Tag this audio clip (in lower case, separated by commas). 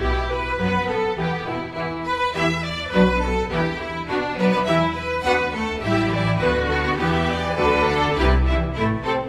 violin, music